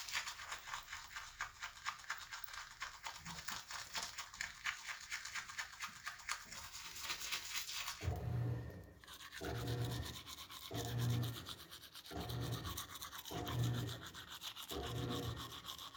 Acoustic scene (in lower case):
restroom